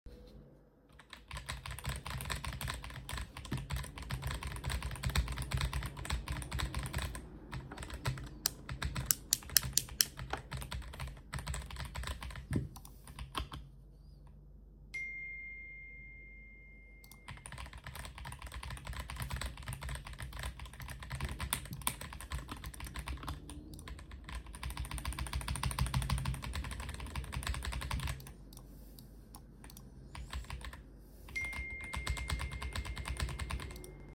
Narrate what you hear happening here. I was working on my keyboard,agressively. While getting notifications on my phone. I also turned off and on the light switch on my desk a few times to adjust light.